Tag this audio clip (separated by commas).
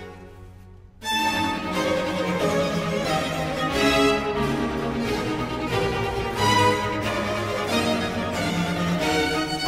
Music, Harpsichord